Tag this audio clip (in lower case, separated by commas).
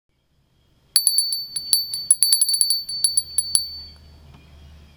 bell, glass